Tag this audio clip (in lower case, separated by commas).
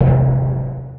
drum, music, percussion, musical instrument